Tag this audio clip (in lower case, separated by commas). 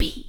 whispering, human voice